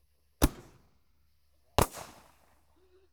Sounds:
Fireworks, Explosion

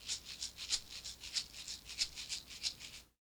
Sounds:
Percussion, Music, Rattle (instrument), Musical instrument

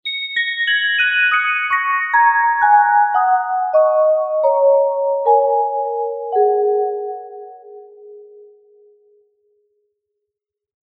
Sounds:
Percussion, Musical instrument, Music, Mallet percussion

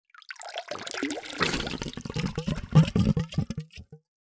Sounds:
Water, Gurgling

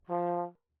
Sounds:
Brass instrument, Musical instrument, Music

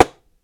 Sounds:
Tap

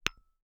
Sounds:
Tap

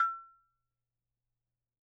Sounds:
Music, Musical instrument, Percussion, Bell

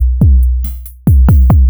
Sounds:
Percussion, Drum kit, Musical instrument, Music

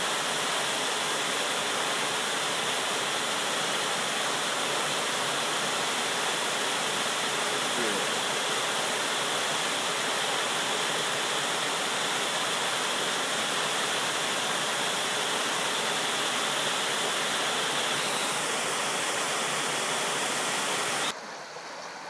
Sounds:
Water

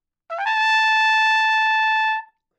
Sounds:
Musical instrument, Brass instrument, Trumpet, Music

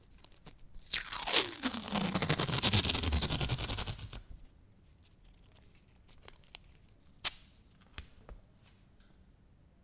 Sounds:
Tearing, home sounds, duct tape

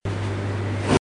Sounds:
Engine

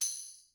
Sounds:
Percussion, Music, Tambourine, Musical instrument

